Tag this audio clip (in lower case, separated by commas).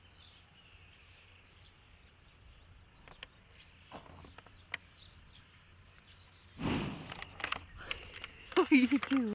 speech, animal